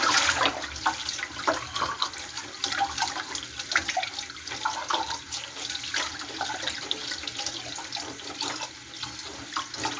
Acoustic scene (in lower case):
kitchen